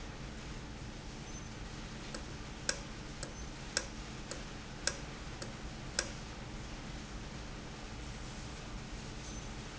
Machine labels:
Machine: valve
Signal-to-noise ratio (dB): 0 dB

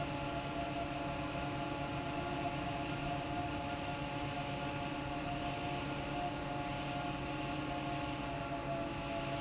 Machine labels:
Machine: fan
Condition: normal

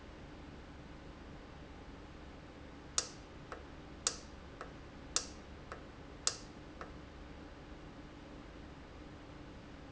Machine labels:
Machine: valve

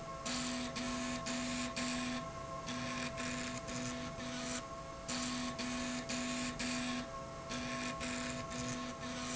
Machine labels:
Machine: slide rail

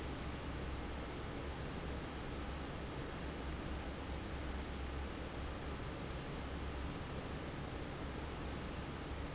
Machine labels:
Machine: fan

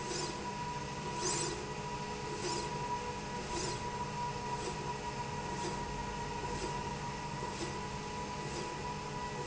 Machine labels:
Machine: slide rail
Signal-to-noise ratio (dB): -6 dB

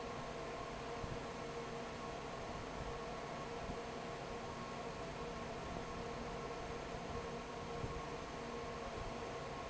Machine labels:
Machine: fan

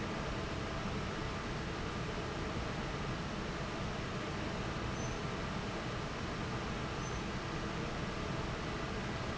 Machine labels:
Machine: fan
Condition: normal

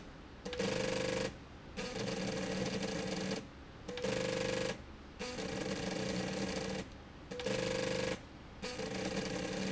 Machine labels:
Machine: slide rail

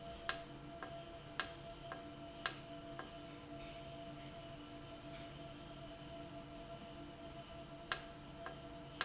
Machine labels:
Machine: valve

